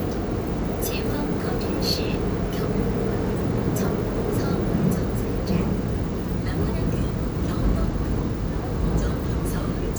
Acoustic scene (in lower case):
subway train